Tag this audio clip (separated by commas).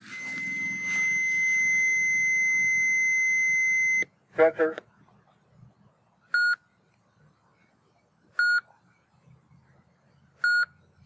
Alarm